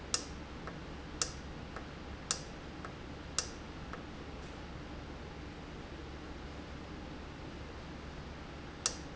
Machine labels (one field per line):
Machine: valve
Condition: normal